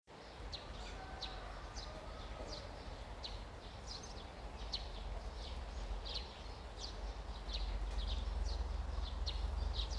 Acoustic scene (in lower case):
park